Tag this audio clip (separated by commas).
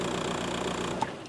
Vehicle, Engine, Car, Motor vehicle (road)